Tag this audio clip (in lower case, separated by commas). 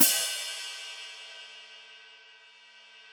hi-hat, musical instrument, music, cymbal, percussion